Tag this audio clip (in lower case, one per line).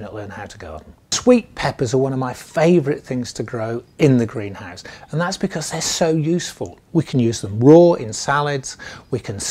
speech